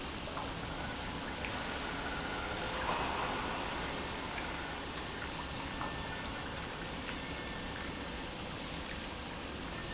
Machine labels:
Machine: pump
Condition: normal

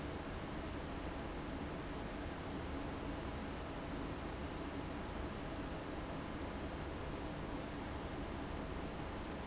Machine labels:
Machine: fan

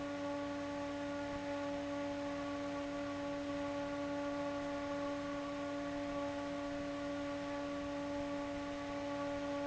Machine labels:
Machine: fan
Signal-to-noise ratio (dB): 6 dB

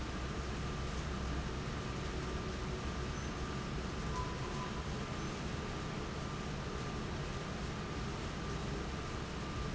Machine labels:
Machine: fan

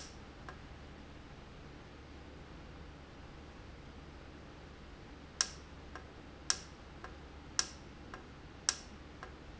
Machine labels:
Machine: valve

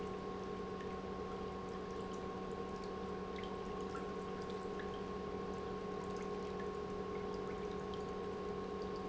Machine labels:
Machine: pump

